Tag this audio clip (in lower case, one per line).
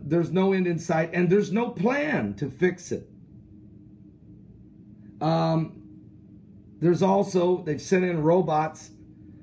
speech